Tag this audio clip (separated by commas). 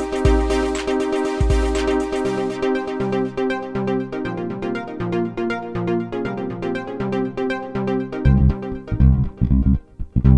Music